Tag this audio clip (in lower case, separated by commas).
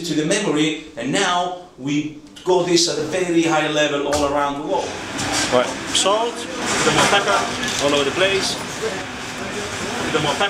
speech